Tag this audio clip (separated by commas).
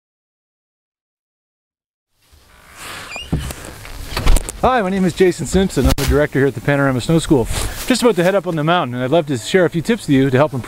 Speech